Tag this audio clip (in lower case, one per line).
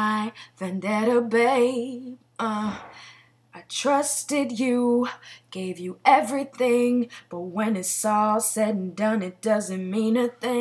female singing